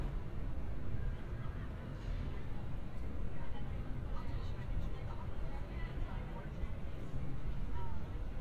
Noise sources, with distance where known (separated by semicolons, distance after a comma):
person or small group talking, far